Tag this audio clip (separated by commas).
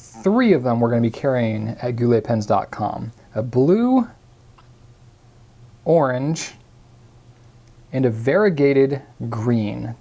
Speech